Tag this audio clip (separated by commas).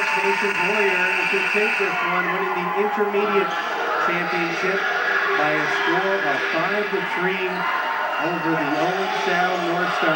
Speech